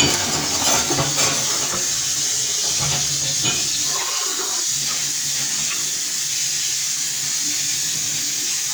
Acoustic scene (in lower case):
kitchen